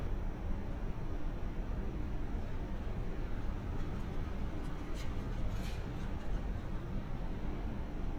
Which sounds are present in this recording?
engine of unclear size